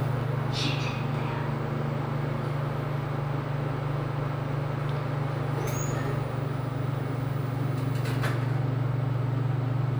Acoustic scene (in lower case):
elevator